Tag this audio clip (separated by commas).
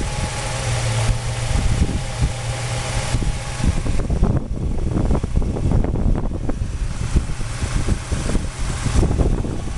Idling